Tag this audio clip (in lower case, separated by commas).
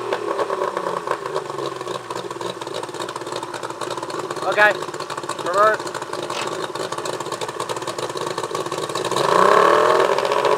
speech